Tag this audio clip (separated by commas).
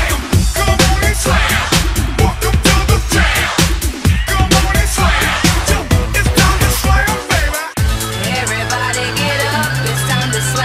Music